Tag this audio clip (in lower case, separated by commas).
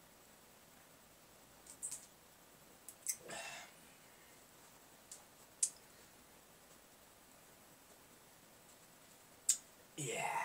silence